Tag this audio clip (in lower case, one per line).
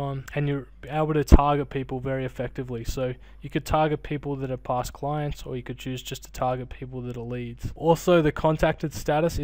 speech